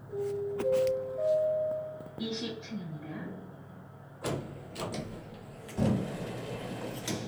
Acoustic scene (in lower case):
elevator